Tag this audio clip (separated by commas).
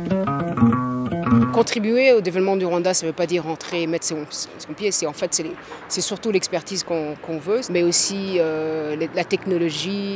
Speech, Music